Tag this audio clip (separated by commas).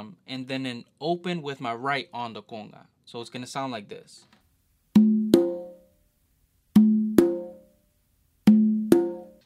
playing congas